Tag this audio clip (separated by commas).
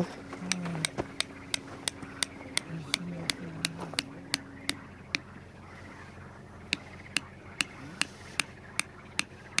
Speech, outside, rural or natural